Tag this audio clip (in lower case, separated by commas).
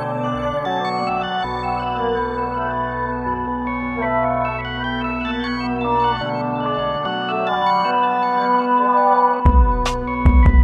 music, electronic music, electronica, electronic dance music